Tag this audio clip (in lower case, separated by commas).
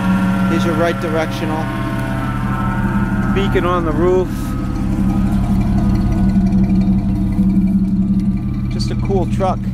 vehicle, speech